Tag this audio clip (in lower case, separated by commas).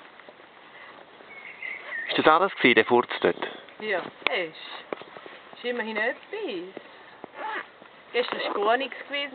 speech